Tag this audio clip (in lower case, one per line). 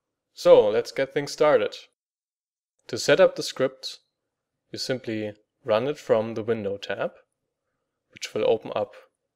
speech